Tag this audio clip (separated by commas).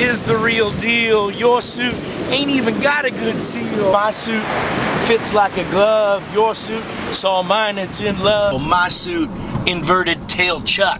Speech